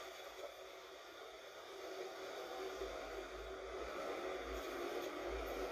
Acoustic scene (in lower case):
bus